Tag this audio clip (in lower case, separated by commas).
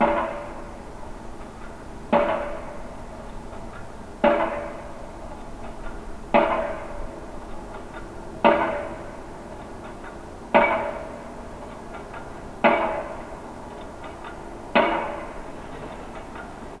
mechanisms